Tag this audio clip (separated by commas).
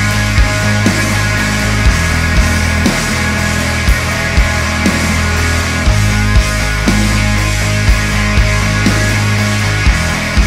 Grunge